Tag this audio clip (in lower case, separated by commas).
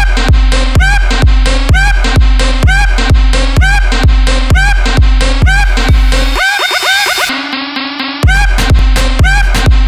music, sound effect